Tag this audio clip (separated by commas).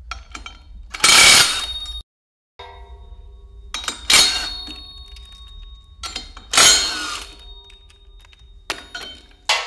inside a small room